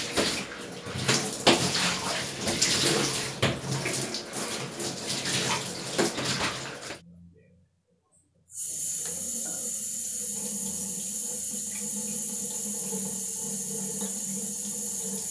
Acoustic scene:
restroom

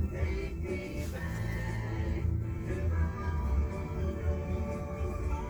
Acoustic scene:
car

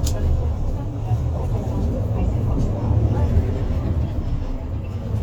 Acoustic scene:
bus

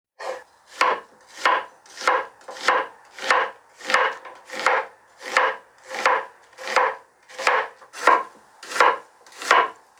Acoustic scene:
kitchen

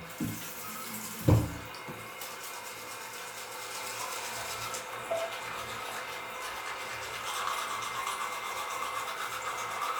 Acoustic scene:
restroom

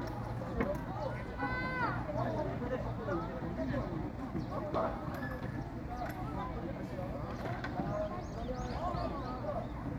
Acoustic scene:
park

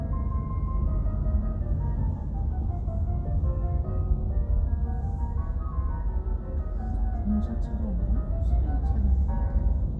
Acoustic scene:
car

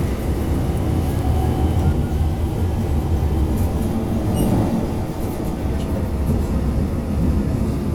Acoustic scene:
subway station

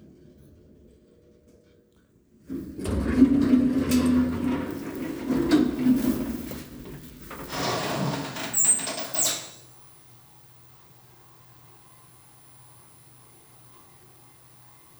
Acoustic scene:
elevator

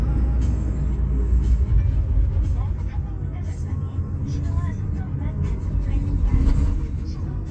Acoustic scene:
car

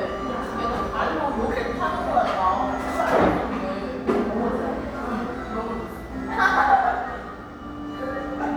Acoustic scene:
crowded indoor space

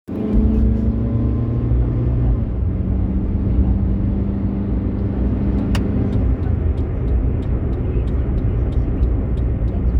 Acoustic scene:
car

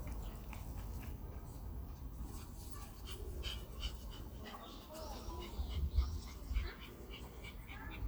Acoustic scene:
park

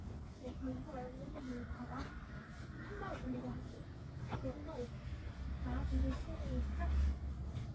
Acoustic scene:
park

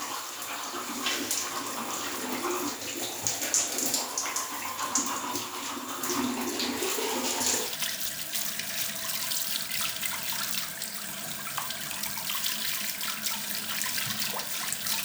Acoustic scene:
restroom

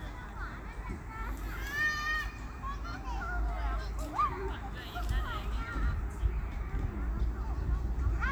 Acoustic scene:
park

